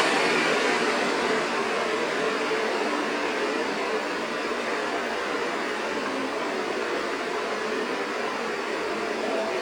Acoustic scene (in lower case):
street